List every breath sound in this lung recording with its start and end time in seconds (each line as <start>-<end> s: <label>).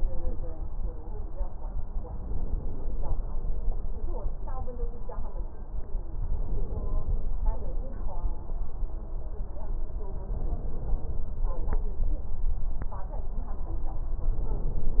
2.15-3.25 s: inhalation
6.33-7.43 s: inhalation
10.30-11.32 s: inhalation
14.39-15.00 s: inhalation